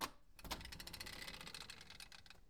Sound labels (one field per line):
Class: window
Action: opening